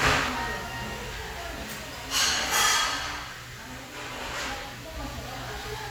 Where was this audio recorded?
in a restaurant